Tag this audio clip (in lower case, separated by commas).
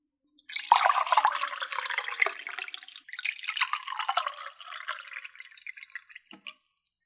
liquid